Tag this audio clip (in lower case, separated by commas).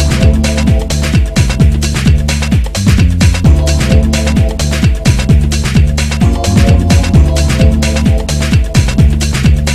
music